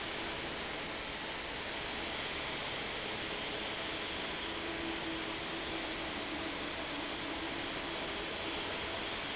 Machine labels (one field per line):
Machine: fan